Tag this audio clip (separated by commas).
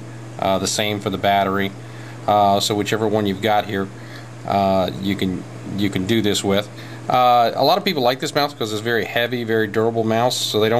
Speech